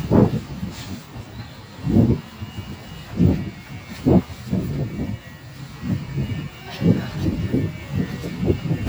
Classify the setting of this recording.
residential area